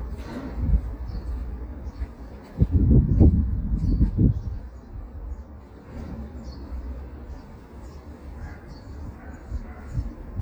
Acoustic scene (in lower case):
residential area